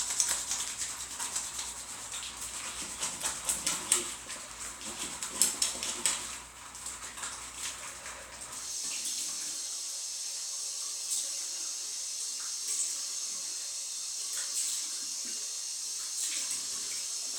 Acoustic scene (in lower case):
restroom